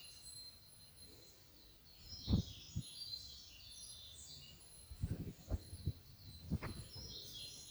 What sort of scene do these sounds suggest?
park